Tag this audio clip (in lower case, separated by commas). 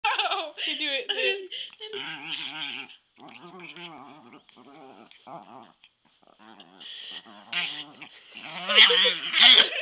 dog, animal, speech, domestic animals